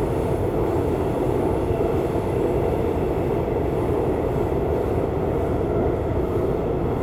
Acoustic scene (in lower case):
subway train